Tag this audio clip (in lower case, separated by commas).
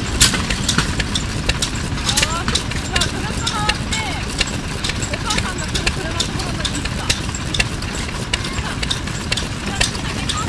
speech, heavy engine (low frequency)